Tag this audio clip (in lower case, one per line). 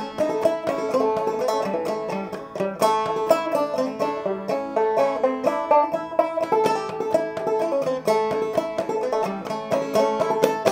music
banjo
playing banjo